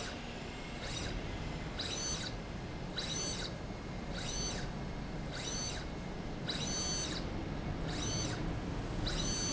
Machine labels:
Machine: slide rail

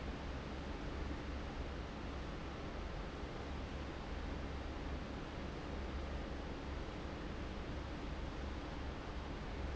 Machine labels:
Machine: fan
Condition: abnormal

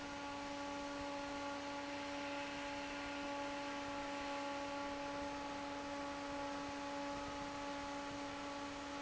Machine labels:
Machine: fan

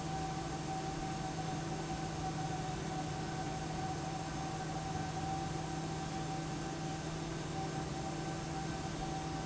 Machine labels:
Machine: fan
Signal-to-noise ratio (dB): -6 dB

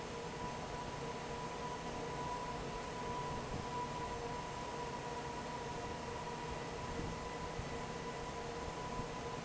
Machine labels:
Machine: fan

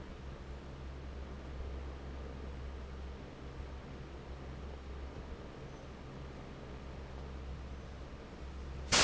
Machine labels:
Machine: fan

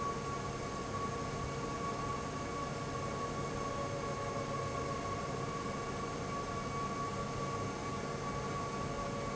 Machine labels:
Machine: fan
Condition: abnormal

